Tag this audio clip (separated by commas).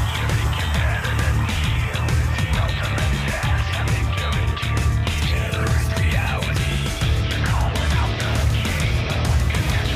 Music